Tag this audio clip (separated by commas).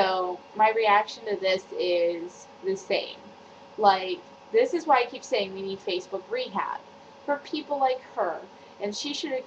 Speech